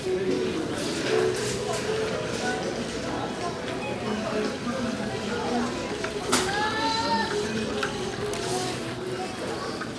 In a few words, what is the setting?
crowded indoor space